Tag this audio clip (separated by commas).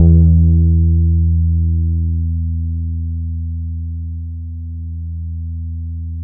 Guitar, Musical instrument, Plucked string instrument, Bass guitar, Music